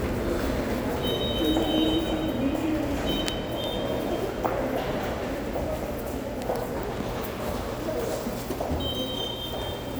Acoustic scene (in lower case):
subway station